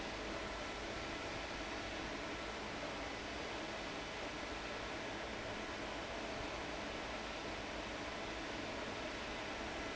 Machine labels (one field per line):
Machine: fan